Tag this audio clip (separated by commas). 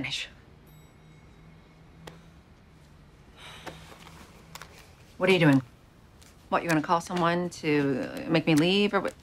Speech